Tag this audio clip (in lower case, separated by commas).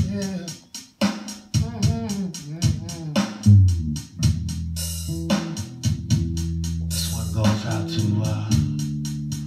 music